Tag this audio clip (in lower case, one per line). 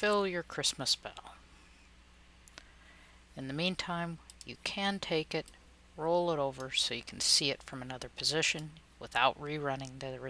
speech